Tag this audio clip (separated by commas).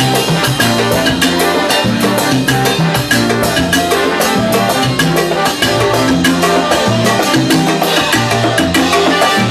playing timbales